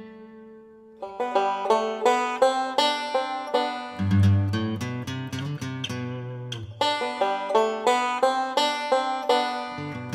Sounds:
guitar
music

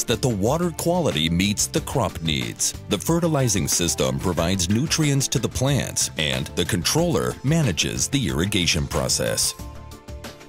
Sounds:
music
speech

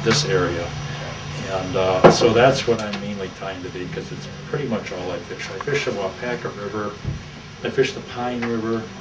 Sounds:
speech

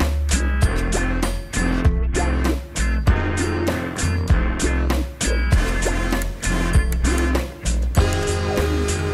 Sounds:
music

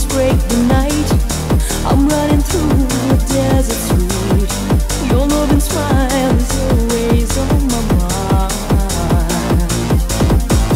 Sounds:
music

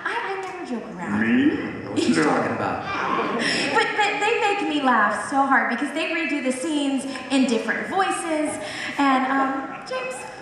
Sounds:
speech
man speaking

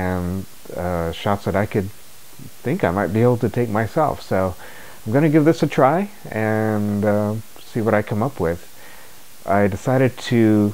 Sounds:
speech

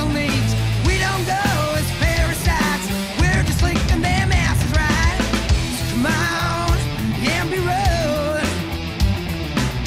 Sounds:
music

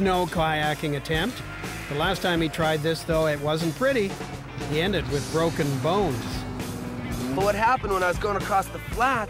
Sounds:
music
speech

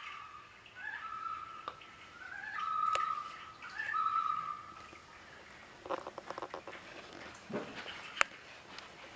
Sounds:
inside a small room

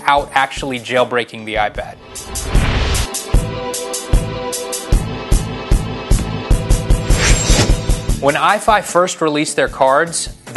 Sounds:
music
speech

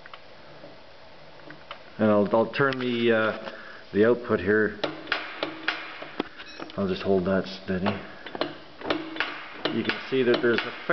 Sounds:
speech

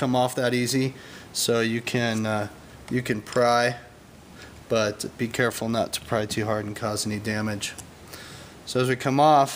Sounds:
speech

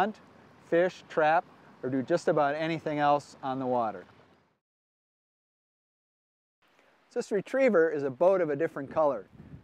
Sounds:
speech

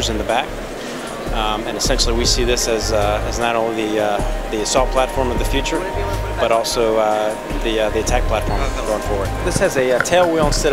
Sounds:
speech
music

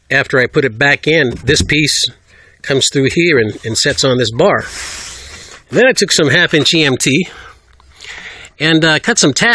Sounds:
speech

